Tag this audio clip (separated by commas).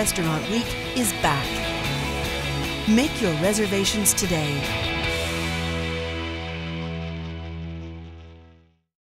Speech, Music